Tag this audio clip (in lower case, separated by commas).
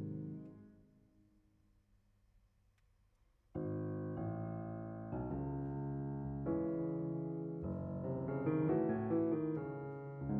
keyboard (musical), piano